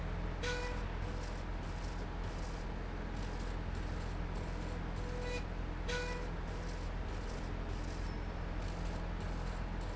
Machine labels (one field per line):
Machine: slide rail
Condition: normal